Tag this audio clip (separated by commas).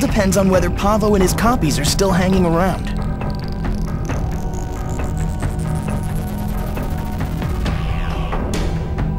Speech, Music